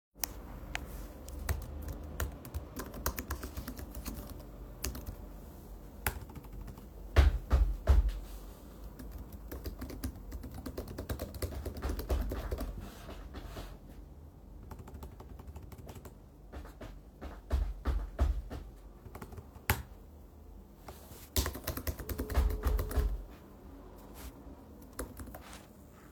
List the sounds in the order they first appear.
keyboard typing, footsteps, phone ringing